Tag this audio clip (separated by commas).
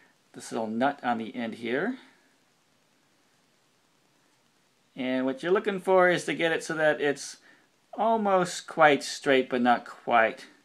Speech